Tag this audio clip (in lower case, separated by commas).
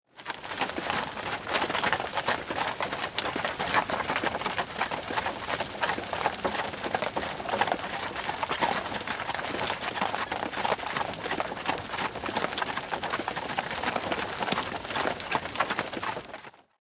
animal, livestock